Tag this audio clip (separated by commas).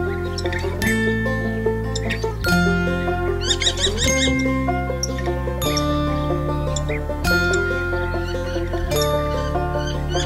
Music